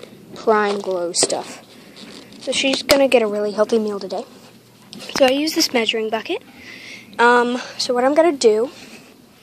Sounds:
speech

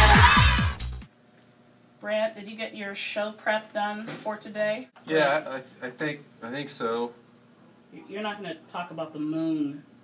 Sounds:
music
speech

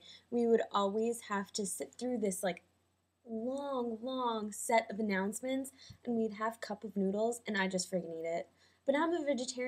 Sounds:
speech

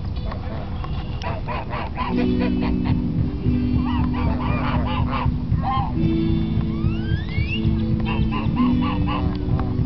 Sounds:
goose
fowl
honk

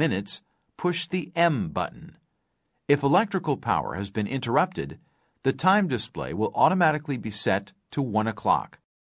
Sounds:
speech

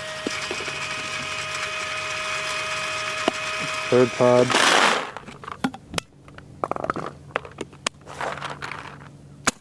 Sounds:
speech
outside, rural or natural

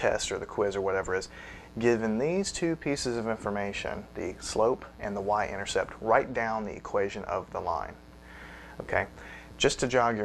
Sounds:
speech

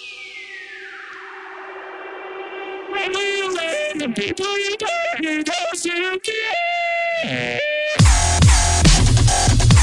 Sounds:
music

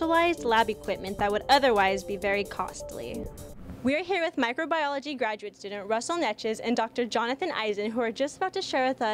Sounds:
music
speech

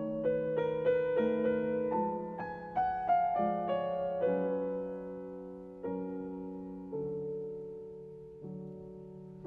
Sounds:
music

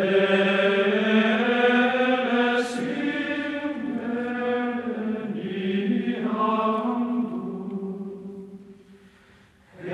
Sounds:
mantra

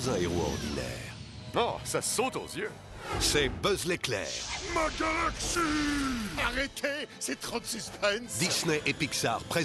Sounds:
speech

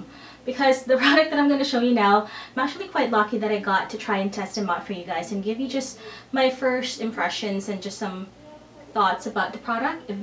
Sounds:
speech

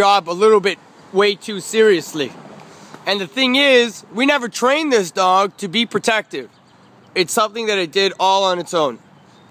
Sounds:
speech

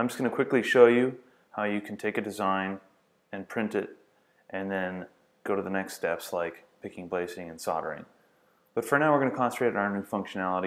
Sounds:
speech

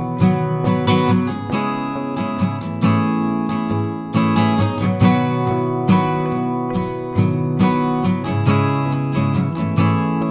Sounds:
music

